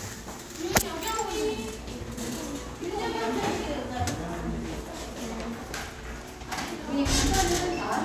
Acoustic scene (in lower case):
crowded indoor space